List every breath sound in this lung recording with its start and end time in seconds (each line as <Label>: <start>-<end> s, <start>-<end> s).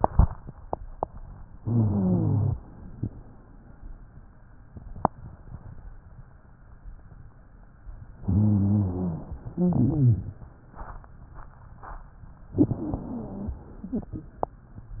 Inhalation: 1.59-2.58 s, 8.22-9.27 s, 12.58-13.63 s
Exhalation: 9.52-10.42 s, 13.79-14.35 s
Wheeze: 1.59-2.58 s, 8.22-9.27 s, 9.52-10.42 s, 12.58-13.63 s, 13.79-14.35 s